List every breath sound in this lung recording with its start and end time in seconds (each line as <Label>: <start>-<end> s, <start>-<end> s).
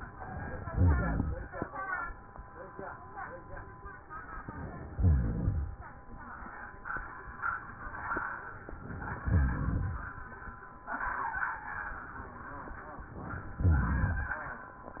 Inhalation: 0.00-0.67 s, 4.40-4.99 s, 8.70-9.26 s
Exhalation: 0.65-1.52 s, 4.93-6.05 s, 9.26-10.55 s
Crackles: 0.61-1.51 s, 4.93-6.02 s, 9.26-10.55 s